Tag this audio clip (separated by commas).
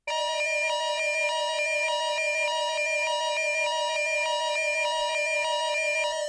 Alarm